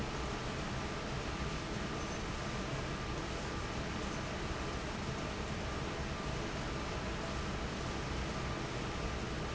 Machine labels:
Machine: fan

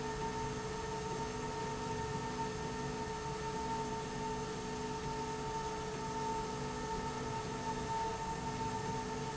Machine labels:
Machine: slide rail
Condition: normal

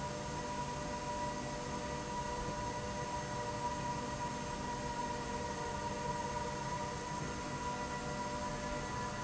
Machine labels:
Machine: slide rail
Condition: normal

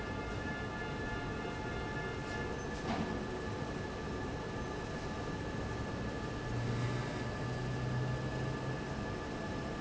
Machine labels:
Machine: fan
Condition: abnormal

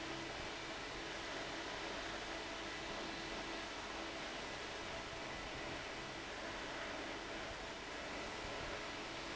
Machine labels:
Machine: fan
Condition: abnormal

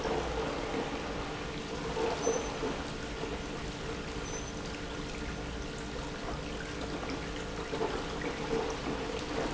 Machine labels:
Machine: pump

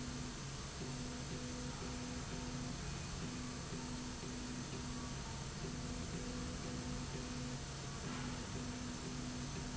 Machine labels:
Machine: slide rail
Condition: normal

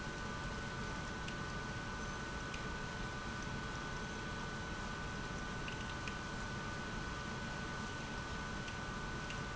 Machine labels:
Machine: pump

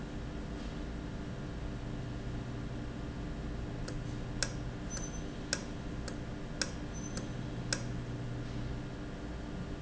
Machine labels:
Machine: valve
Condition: normal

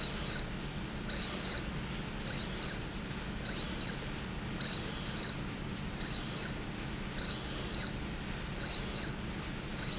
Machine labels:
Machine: slide rail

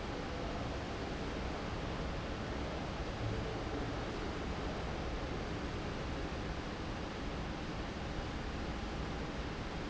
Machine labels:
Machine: fan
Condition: abnormal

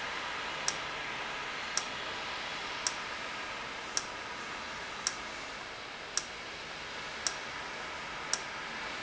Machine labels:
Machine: valve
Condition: normal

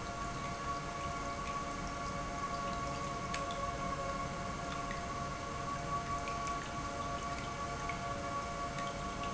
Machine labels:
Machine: pump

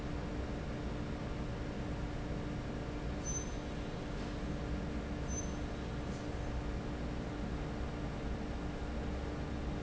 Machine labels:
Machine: fan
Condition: normal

